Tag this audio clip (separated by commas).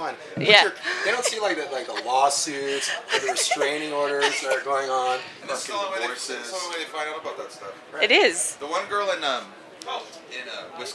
Speech